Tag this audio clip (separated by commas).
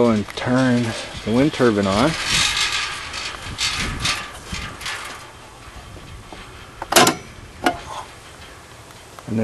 Wind, Wind noise (microphone)